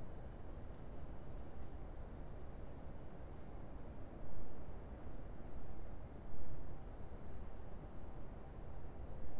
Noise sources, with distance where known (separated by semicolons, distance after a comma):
background noise